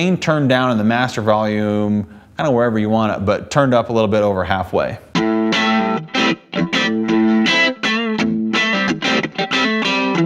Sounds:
electric guitar, effects unit, distortion, speech, music

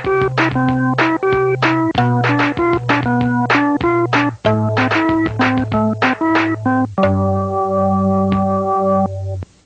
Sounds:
music, harpsichord

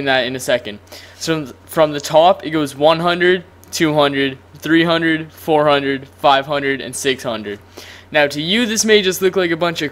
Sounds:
speech

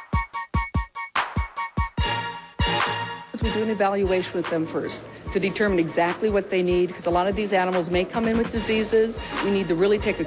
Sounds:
speech, music

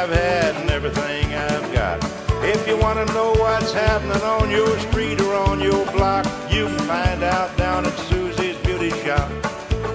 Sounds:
music, exciting music

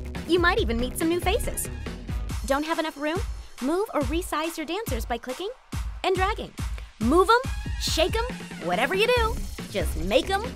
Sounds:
music, speech

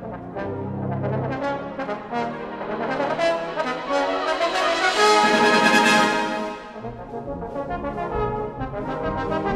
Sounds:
music, musical instrument, trombone, brass instrument, playing trombone

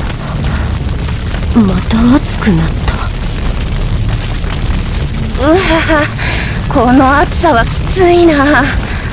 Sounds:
speech, music, boom

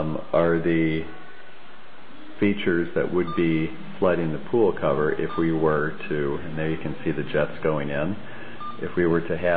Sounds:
beep, speech

